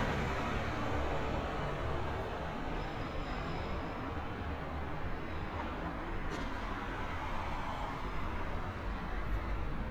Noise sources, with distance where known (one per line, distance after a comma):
medium-sounding engine, near